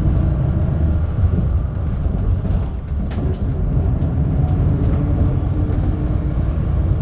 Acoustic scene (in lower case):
bus